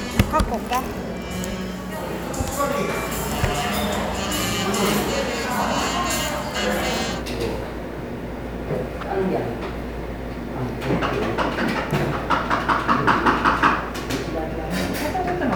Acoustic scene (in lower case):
cafe